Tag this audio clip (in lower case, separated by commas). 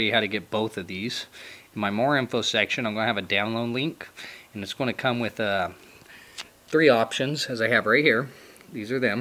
speech